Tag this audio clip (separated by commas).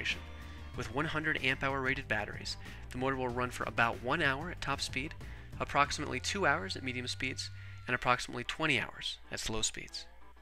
Speech, Music